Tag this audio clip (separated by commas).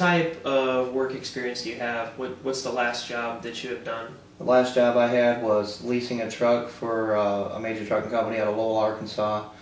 Speech